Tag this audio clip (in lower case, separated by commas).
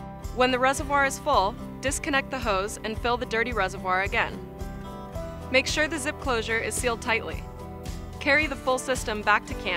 music, speech